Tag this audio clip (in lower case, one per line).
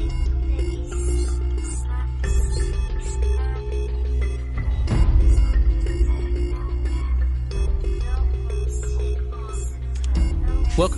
music